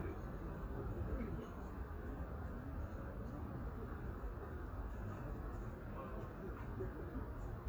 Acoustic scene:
residential area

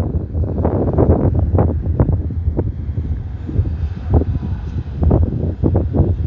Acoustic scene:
street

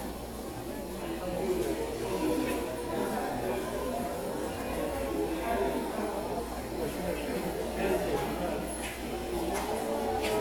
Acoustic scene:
subway station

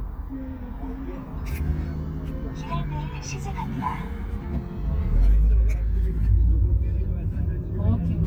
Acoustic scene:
car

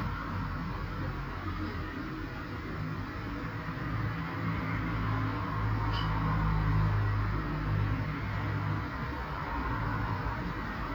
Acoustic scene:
street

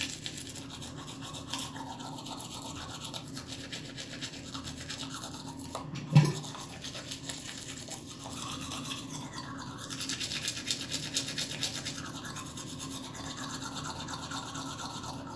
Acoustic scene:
restroom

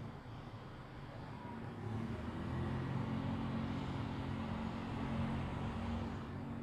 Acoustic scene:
residential area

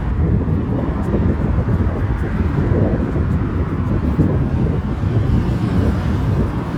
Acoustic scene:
street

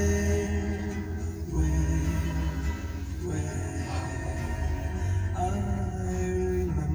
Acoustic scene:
car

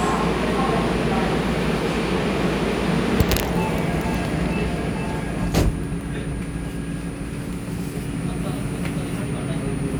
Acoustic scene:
subway station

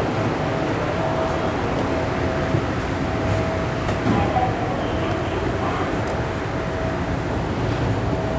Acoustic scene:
subway station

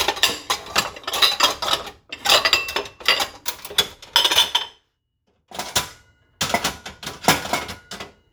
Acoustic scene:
kitchen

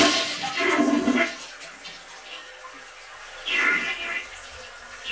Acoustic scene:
restroom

